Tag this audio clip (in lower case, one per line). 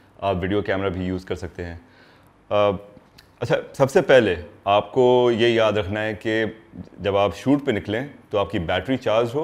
speech